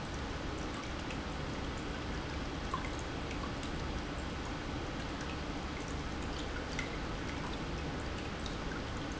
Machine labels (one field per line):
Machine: pump